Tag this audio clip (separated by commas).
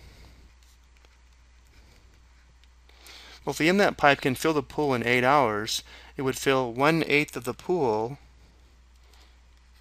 Speech